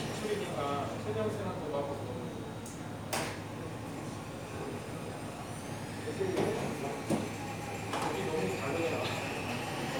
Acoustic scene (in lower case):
cafe